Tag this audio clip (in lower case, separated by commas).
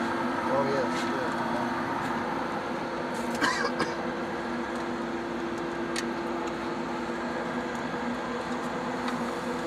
speech